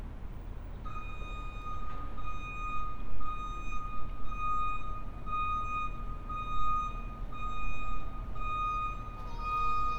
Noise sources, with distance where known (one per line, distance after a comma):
reverse beeper, near